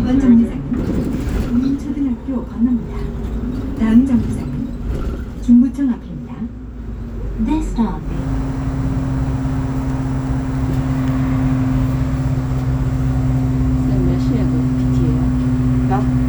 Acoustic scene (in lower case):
bus